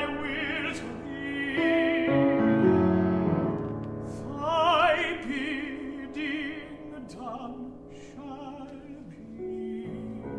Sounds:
Opera, Music

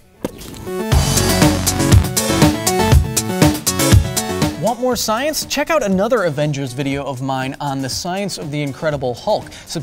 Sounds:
people finger snapping

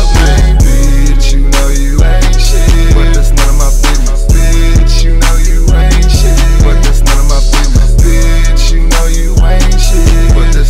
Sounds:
Music

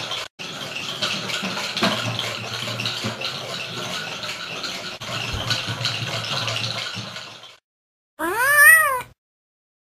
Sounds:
Animal, pets, Cat

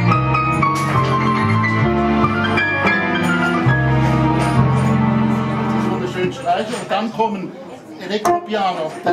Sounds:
Music, Speech

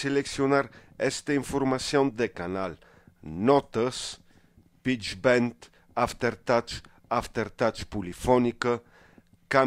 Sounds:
Speech

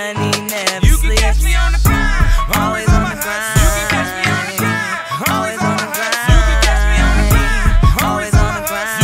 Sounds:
Music, Rhythm and blues

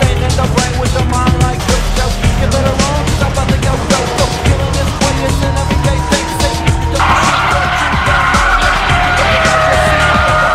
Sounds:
Music

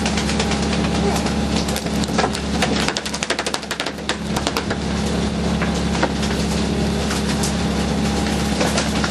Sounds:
Vehicle, speedboat

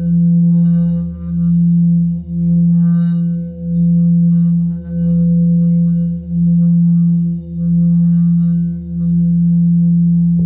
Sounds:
Didgeridoo, Singing bowl, Music

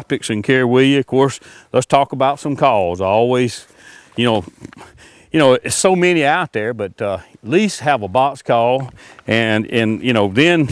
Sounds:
outside, rural or natural, Speech

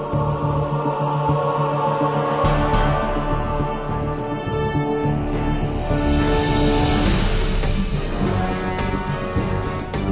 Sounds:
Music

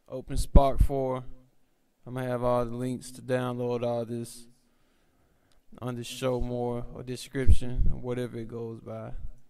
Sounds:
Speech

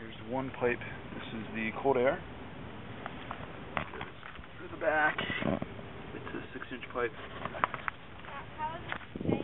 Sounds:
Speech, outside, urban or man-made

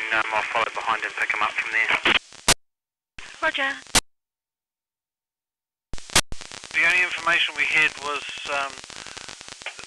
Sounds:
police radio chatter

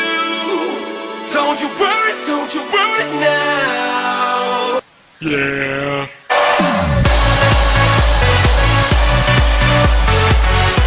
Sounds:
Electronic dance music, Music

